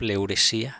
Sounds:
human voice

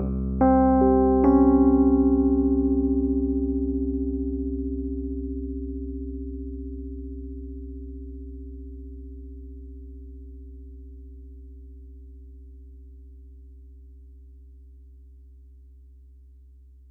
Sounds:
piano, keyboard (musical), musical instrument, music

